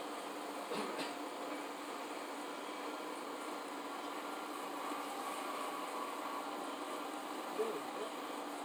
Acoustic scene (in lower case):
subway train